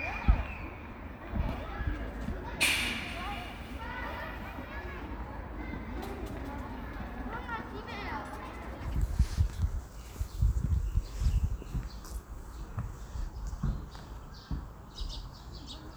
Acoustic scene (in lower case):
park